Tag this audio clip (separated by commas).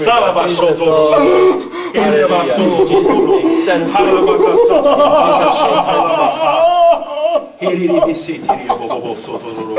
Speech